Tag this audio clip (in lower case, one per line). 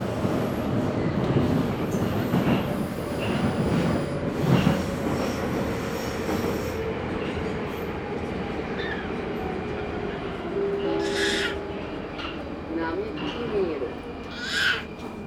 metro
vehicle
rail transport